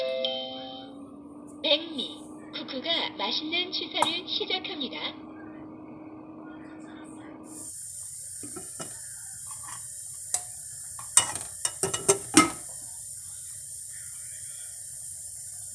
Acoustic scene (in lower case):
kitchen